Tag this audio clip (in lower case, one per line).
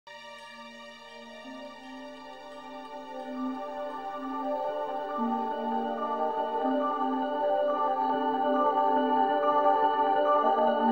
music
ambient music